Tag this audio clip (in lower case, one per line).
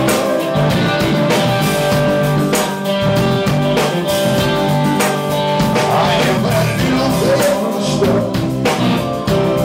jazz
blues
music